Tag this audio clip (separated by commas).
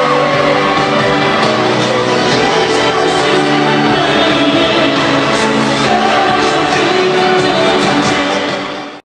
Male singing, Music